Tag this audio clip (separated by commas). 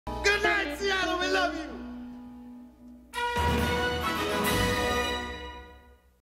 Speech, Music